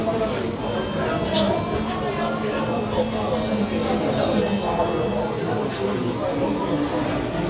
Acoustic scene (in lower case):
cafe